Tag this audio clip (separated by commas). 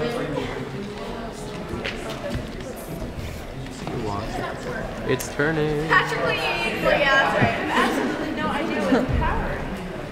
Speech